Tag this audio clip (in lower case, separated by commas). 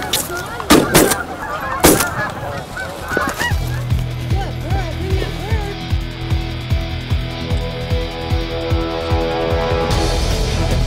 music, bird, goose, speech